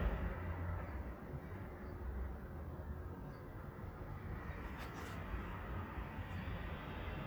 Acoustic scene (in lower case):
residential area